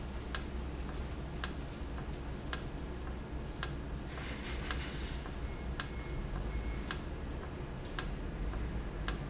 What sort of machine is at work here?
valve